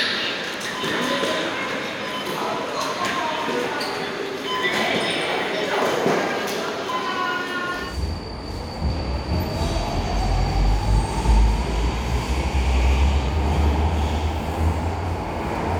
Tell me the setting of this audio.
subway station